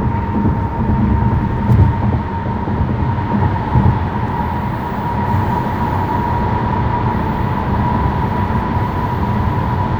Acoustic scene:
car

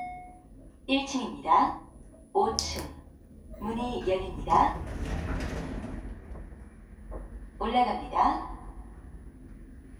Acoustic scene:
elevator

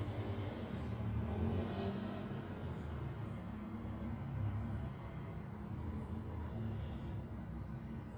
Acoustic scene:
residential area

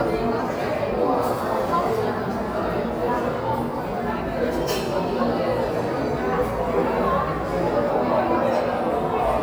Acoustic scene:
cafe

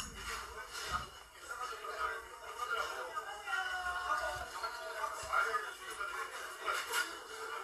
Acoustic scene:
crowded indoor space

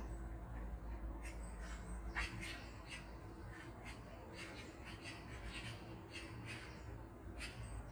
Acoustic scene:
park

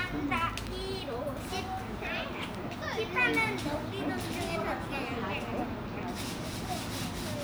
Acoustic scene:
park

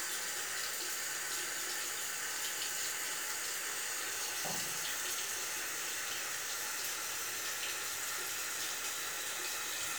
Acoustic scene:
restroom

